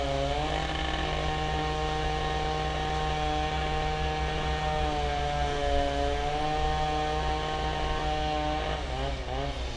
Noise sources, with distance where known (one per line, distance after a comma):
unidentified powered saw